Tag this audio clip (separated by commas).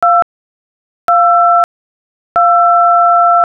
Telephone, Alarm